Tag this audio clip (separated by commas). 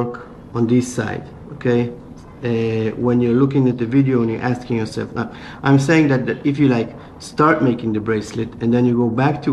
Speech